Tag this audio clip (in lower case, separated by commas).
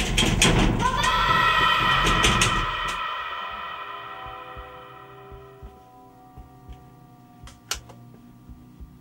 music, speech